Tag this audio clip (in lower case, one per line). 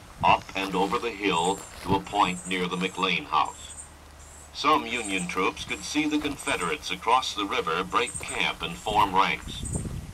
speech